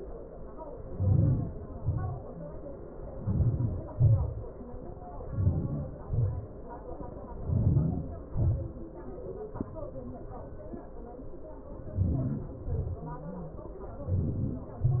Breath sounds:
Inhalation: 0.68-1.39 s, 3.06-3.81 s, 5.05-5.73 s, 7.15-7.93 s, 11.65-12.39 s, 13.76-14.35 s
Exhalation: 1.39-1.99 s, 3.83-4.35 s, 5.79-6.32 s, 7.97-8.63 s, 12.41-12.96 s, 14.40-15.00 s

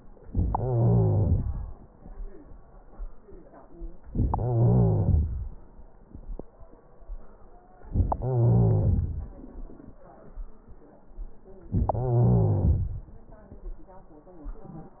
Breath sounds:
Wheeze: 0.27-1.61 s, 4.25-5.38 s, 8.19-9.32 s, 11.94-13.07 s

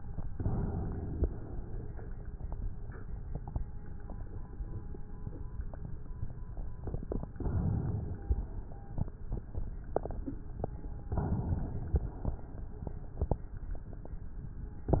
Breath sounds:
Inhalation: 0.10-1.44 s, 7.28-8.23 s, 11.01-12.15 s
Exhalation: 1.45-2.48 s, 8.25-9.16 s, 12.16-13.49 s

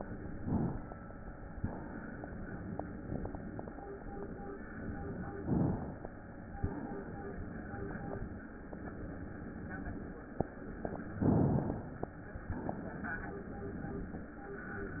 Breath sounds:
Inhalation: 0.32-1.56 s, 5.38-6.57 s, 11.20-12.53 s
Exhalation: 1.56-2.75 s, 6.58-8.23 s, 12.53-14.30 s

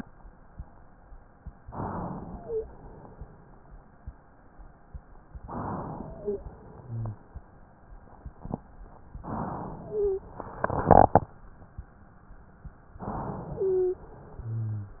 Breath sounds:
Inhalation: 1.63-2.69 s, 5.40-6.47 s, 9.26-10.32 s, 12.97-14.04 s
Exhalation: 6.57-7.49 s, 14.03-15.00 s
Wheeze: 2.23-2.71 s, 5.98-6.47 s, 6.81-7.23 s, 9.84-10.32 s, 13.57-14.05 s, 14.36-15.00 s

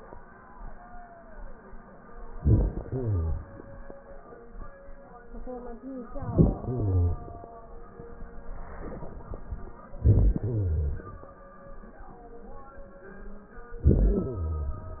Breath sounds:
Inhalation: 2.34-3.41 s, 6.15-7.22 s, 9.95-11.27 s, 13.82-15.00 s

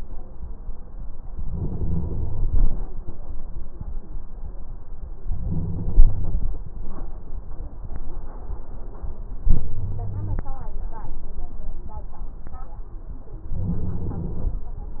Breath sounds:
Inhalation: 1.46-2.66 s, 5.28-6.47 s, 9.44-10.46 s, 13.56-14.58 s

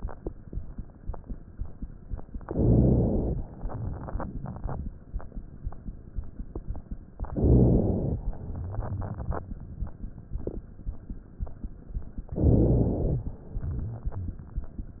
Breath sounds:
Inhalation: 2.47-3.40 s, 7.30-8.24 s, 12.33-13.26 s
Exhalation: 3.49-4.95 s, 8.29-10.13 s, 13.36-15.00 s
Rhonchi: 2.47-3.40 s, 7.30-8.24 s, 12.33-13.26 s
Crackles: 3.49-4.95 s, 8.29-10.13 s, 13.36-15.00 s

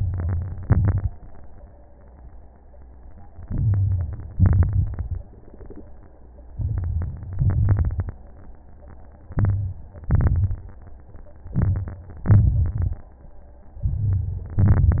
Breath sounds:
Inhalation: 0.00-0.60 s, 3.44-4.28 s, 6.53-7.36 s, 9.34-9.84 s, 11.51-12.23 s, 13.84-14.56 s
Exhalation: 0.64-1.13 s, 4.36-5.20 s, 7.36-8.18 s, 10.05-10.69 s, 12.27-12.98 s, 14.57-15.00 s
Crackles: 0.00-0.60 s, 0.64-1.13 s, 3.44-4.28 s, 4.36-5.20 s, 6.53-7.36 s, 7.36-8.18 s, 9.34-9.84 s, 10.05-10.69 s, 11.51-12.23 s, 12.27-12.98 s, 13.84-14.56 s, 14.57-15.00 s

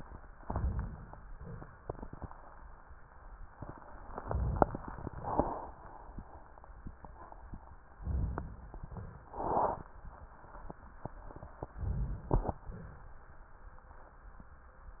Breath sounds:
Inhalation: 0.40-1.26 s, 4.12-5.12 s, 8.01-8.72 s, 11.75-12.59 s
Exhalation: 1.26-1.79 s, 5.12-5.77 s, 8.74-9.37 s, 12.66-13.35 s
Crackles: 4.12-5.12 s

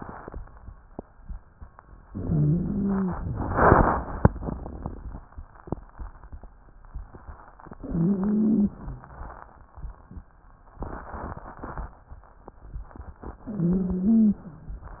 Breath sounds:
Inhalation: 2.05-3.17 s, 7.74-8.77 s, 13.47-14.50 s
Wheeze: 2.11-3.13 s, 7.74-8.77 s, 13.47-14.50 s

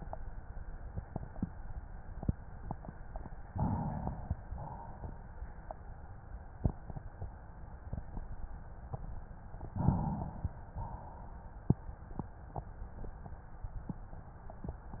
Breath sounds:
Inhalation: 3.42-4.43 s, 9.67-10.73 s
Exhalation: 4.44-5.66 s, 10.73-11.79 s

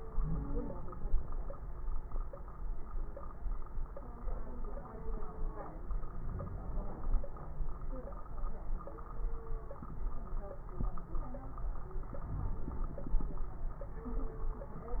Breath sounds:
Inhalation: 6.08-7.26 s, 12.22-13.40 s
Wheeze: 0.14-0.71 s
Crackles: 6.08-7.26 s, 12.22-13.40 s

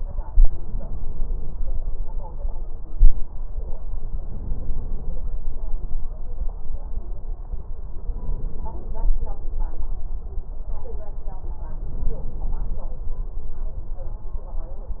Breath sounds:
Inhalation: 4.13-5.27 s, 7.99-9.13 s, 11.83-12.97 s

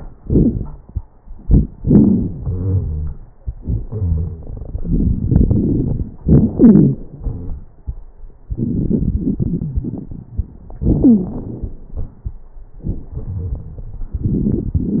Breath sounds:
Inhalation: 4.73-6.08 s, 8.49-10.80 s
Exhalation: 6.16-7.65 s, 10.82-12.37 s
Wheeze: 2.01-3.20 s, 3.60-4.46 s, 6.57-7.00 s, 7.19-7.61 s, 10.82-11.82 s
Crackles: 4.73-6.08 s, 8.49-10.80 s

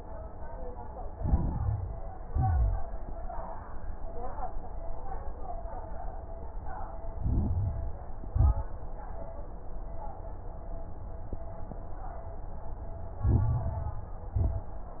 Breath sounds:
Inhalation: 1.06-2.09 s, 7.09-8.11 s, 13.19-14.19 s
Exhalation: 2.22-2.94 s, 8.21-8.76 s, 14.33-15.00 s
Crackles: 1.06-2.09 s, 2.22-2.94 s, 7.09-8.11 s, 8.21-8.76 s, 13.19-14.19 s, 14.33-15.00 s

